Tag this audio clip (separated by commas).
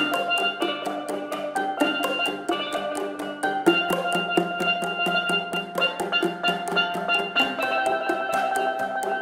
xylophone, Glockenspiel, Mallet percussion